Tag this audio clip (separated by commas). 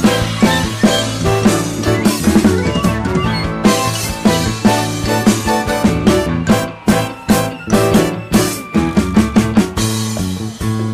Drum, Music, Drum kit, Musical instrument